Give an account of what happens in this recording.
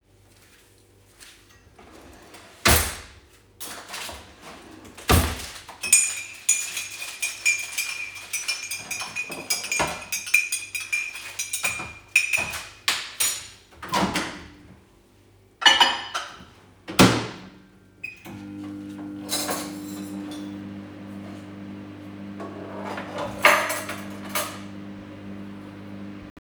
I opened a drawer, grabed a tea spoon and started mixing a coffee in a cup. During that process another person was cutting some food with a knife. Then I opened a microwave and placed my lunch inside of it and started it.